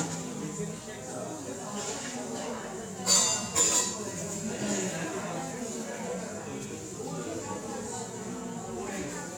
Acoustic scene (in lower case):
cafe